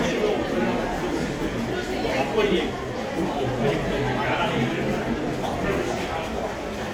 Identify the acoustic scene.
crowded indoor space